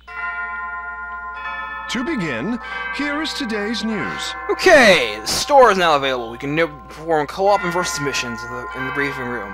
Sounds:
Music, Speech

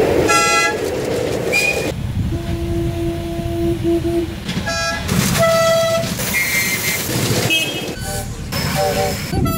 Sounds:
train whistling

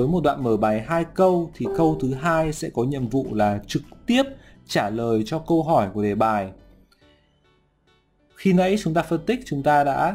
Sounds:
Music, Speech

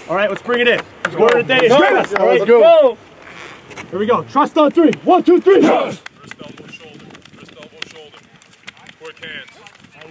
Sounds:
Speech

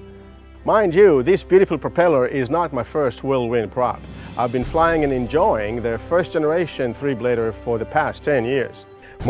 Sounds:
Speech, Music

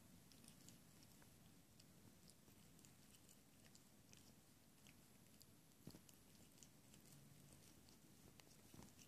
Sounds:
Silence

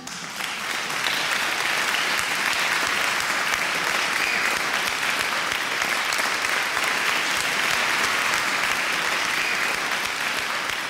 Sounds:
singing choir

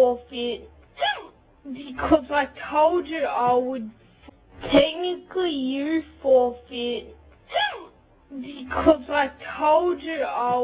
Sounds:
Speech

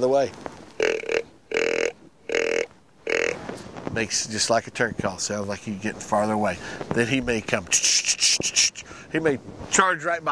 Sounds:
Speech

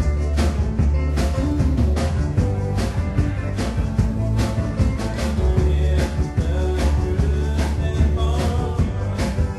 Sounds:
Music

